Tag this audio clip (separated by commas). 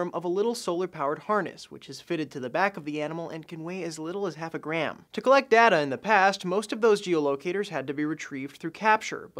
Speech